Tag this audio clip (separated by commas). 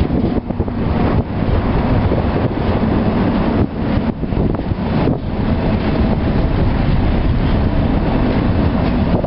Vehicle